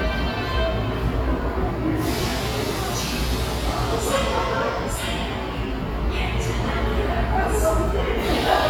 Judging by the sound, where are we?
in a subway station